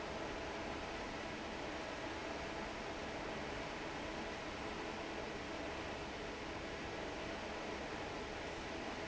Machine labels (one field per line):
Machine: fan